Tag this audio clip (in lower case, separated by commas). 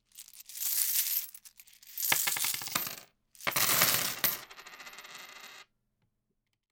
domestic sounds, coin (dropping)